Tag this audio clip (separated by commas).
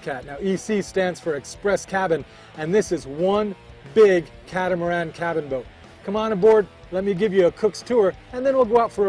Speech, Music